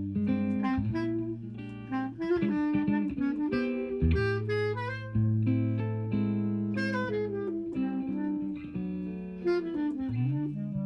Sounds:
Jazz, Music, Musical instrument, Saxophone, Guitar

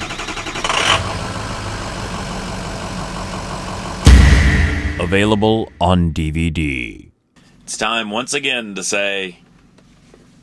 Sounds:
Vehicle, Speech

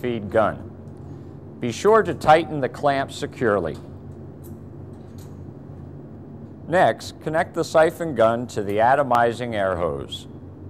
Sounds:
Speech

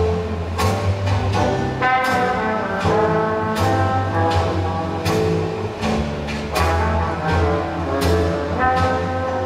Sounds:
Music

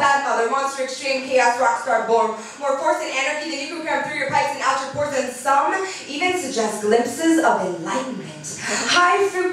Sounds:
Speech

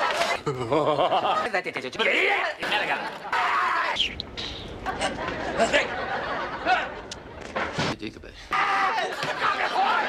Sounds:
Speech

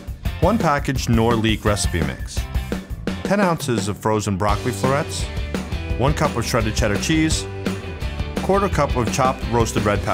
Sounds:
Music, Speech

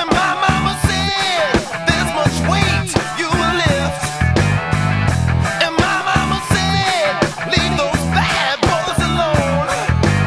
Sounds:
Music

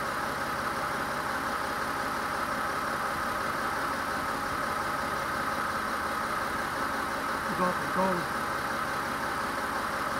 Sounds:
Speech

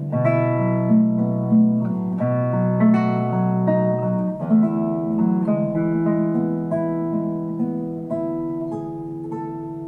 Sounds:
Musical instrument, Strum, Guitar, Music, Plucked string instrument

